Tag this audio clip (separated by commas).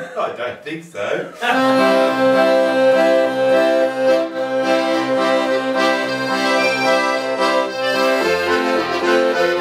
Music, Speech